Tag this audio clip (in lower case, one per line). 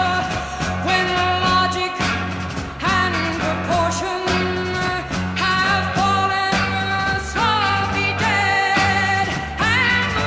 psychedelic rock
music